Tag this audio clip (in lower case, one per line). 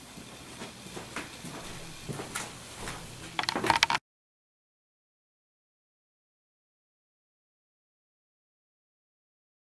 silence